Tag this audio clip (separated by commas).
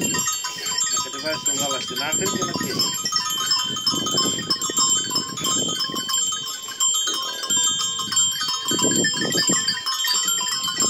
Speech, livestock